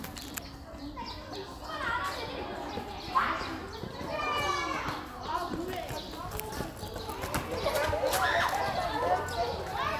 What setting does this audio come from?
park